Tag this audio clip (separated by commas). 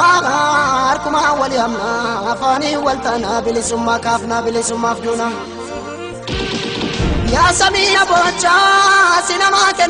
Music